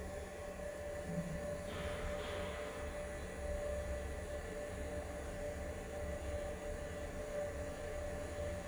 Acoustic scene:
elevator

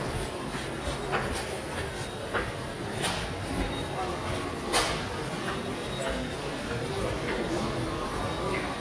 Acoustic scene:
subway station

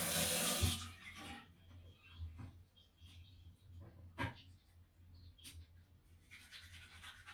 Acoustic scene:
restroom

